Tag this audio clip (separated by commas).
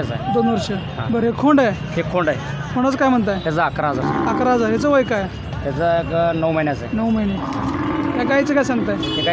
bull bellowing